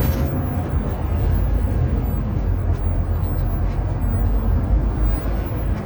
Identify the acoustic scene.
bus